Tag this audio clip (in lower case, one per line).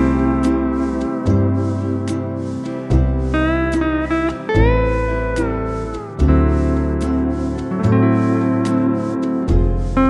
playing steel guitar